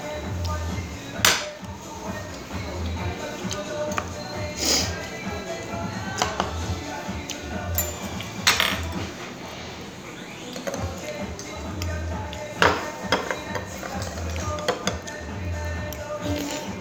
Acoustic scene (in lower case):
restaurant